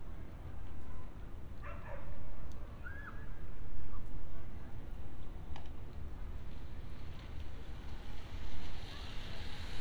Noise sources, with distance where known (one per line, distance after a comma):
person or small group shouting
dog barking or whining